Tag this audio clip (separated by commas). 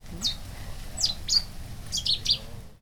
Animal, Wild animals, Bird